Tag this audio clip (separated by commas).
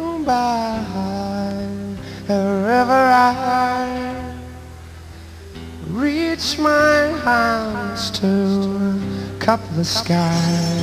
Music